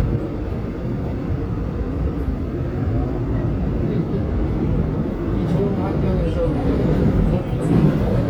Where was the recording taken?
on a subway train